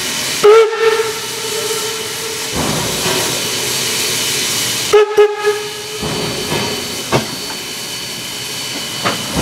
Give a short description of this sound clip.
A train blows its steam whistle a few times